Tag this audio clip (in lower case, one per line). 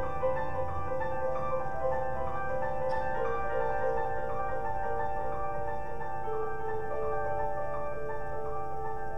music
piano